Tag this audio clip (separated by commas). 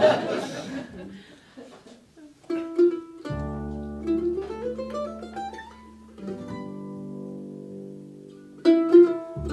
Music, Ukulele, Musical instrument, Guitar